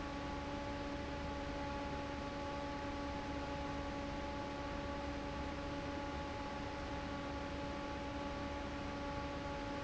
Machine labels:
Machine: fan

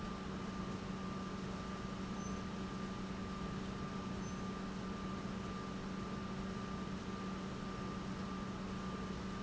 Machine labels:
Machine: pump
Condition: normal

